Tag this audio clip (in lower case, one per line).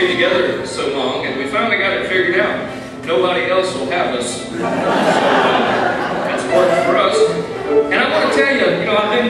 speech
music